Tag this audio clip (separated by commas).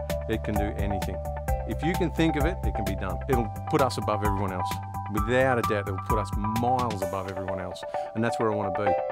Speech, Music